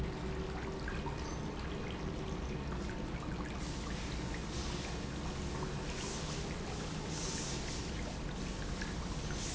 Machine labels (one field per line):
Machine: pump